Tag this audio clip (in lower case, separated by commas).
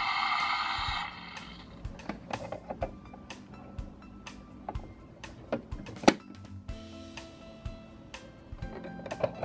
music